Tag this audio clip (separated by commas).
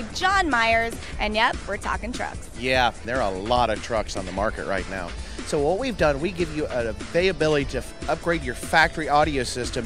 Music, Speech